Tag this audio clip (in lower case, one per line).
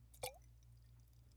liquid